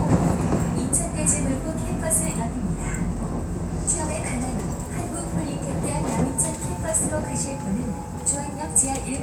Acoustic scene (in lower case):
subway train